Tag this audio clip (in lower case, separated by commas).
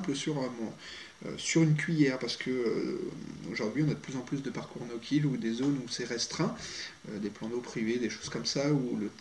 speech